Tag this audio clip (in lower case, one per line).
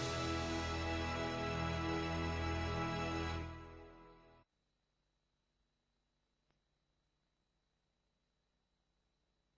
music